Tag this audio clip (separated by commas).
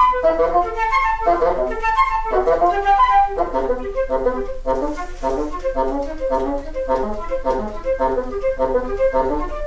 Musical instrument, playing flute, Flute, Wind instrument, Music